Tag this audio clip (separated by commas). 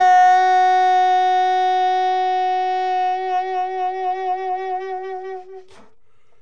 Music, woodwind instrument, Musical instrument